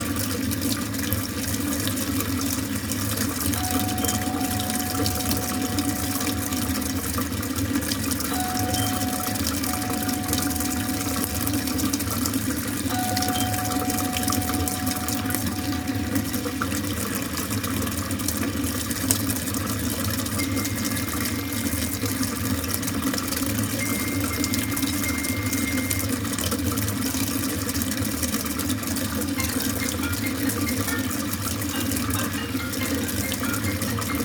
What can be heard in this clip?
running water, bell ringing, phone ringing